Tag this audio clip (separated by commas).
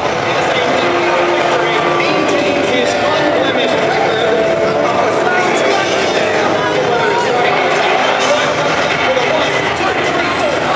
Music, Speech